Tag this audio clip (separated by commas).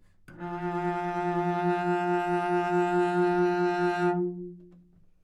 Music, Bowed string instrument, Musical instrument